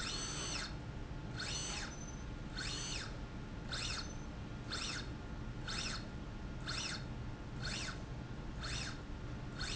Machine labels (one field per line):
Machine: slide rail